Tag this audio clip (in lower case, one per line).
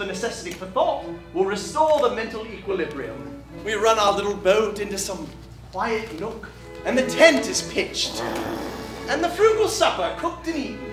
music
speech